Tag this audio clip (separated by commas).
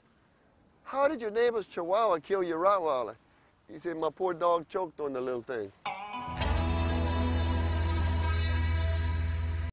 Speech, Music